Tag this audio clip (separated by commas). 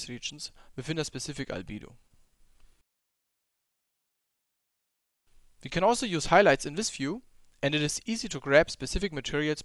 Speech